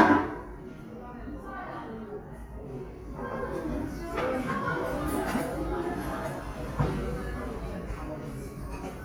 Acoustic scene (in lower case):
restaurant